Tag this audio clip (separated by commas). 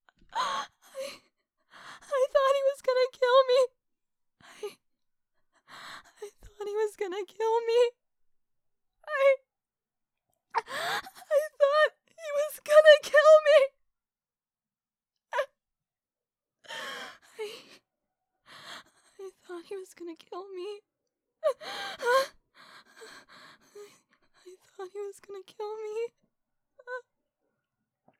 Crying, Shout, Human voice, Yell